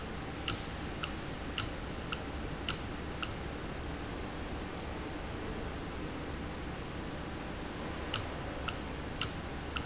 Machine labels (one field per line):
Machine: valve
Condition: normal